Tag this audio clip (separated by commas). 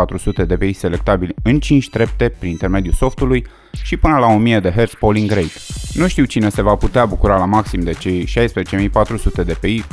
Speech, Music